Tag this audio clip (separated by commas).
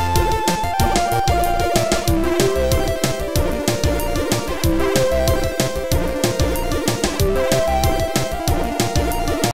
Music